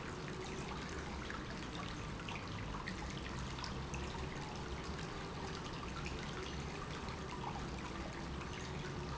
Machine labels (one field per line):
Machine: pump